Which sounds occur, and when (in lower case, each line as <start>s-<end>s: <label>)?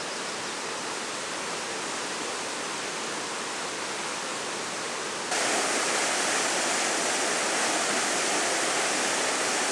0.0s-9.7s: stream